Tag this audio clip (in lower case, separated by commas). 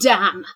woman speaking, human voice, speech